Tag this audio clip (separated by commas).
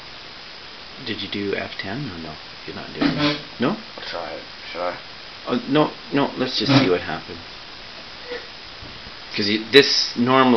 Speech, inside a small room